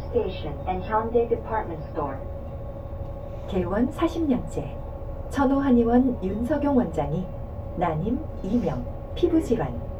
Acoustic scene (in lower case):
bus